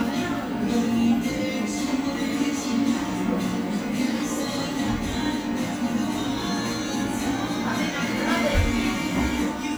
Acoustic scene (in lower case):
cafe